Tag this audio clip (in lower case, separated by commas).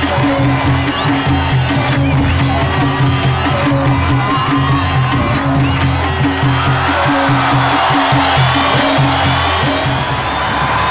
dance music, music